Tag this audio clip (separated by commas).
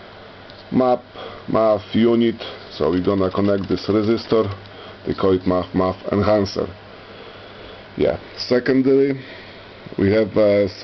Speech